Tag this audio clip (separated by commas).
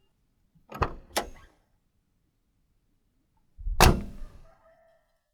Motor vehicle (road), Vehicle, Car